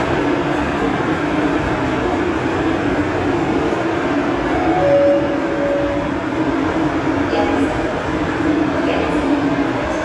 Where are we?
in a subway station